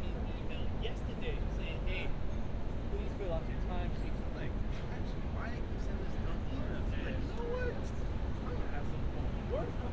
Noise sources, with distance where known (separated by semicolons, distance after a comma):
person or small group talking, near